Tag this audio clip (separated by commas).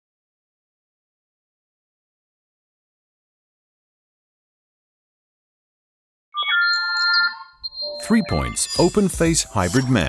Music, Speech, Silence